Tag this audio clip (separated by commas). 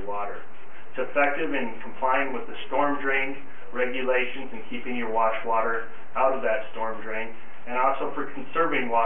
Speech